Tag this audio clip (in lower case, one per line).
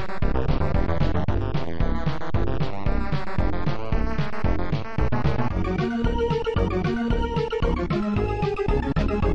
music